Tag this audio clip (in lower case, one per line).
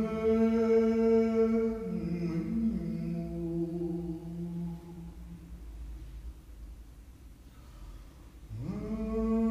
male singing